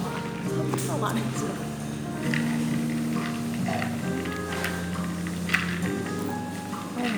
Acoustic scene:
cafe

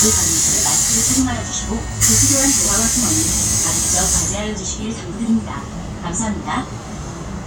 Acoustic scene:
bus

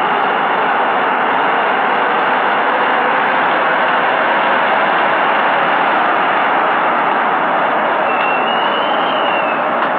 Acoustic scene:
subway station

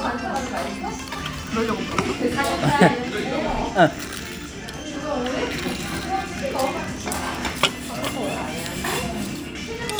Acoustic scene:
restaurant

